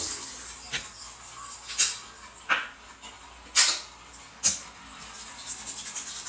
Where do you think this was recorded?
in a restroom